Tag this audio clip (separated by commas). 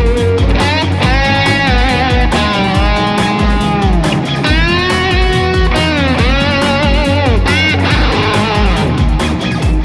Music, Steel guitar, Musical instrument